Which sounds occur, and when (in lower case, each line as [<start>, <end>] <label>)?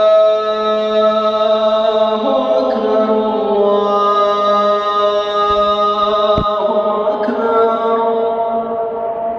[0.00, 9.35] mantra
[0.00, 9.35] music
[2.63, 2.77] generic impact sounds
[3.43, 3.57] generic impact sounds
[5.46, 5.63] generic impact sounds
[6.24, 6.51] generic impact sounds
[7.10, 7.30] generic impact sounds
[7.83, 8.08] generic impact sounds